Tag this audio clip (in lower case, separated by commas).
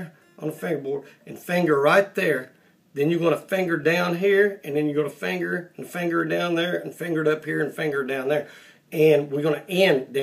speech